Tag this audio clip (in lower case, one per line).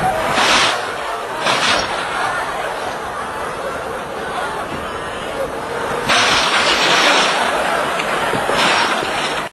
speech